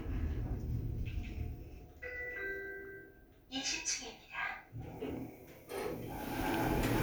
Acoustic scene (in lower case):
elevator